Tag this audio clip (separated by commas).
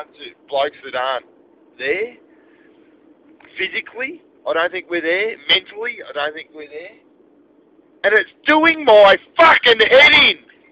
Speech